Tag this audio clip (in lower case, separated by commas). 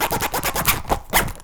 domestic sounds, zipper (clothing)